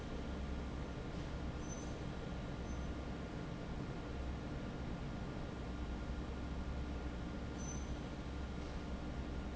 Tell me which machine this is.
fan